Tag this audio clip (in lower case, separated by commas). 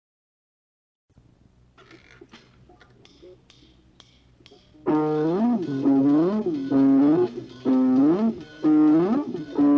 music